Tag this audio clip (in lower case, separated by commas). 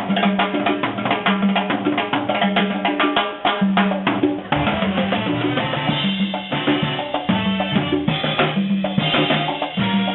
drum, drum kit, music, musical instrument